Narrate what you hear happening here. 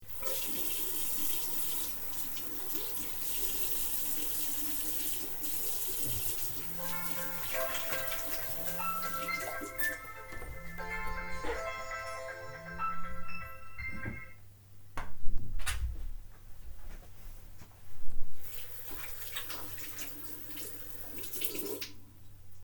I turn on the tap to wash my hands. My phone starts ringing. I turn off the tap and reject the call on my phone. I walk back to the sink and turn it on again to continue washing my hands.